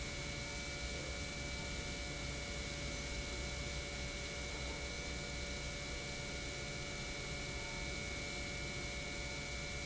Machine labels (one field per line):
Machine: pump